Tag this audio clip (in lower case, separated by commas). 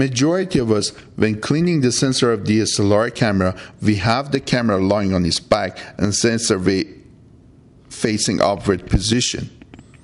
speech